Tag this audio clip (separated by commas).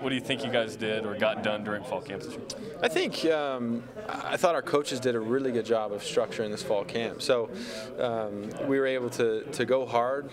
Speech